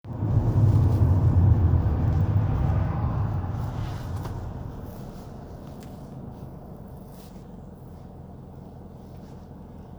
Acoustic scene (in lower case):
car